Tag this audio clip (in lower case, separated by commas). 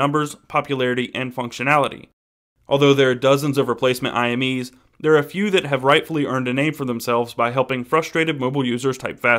speech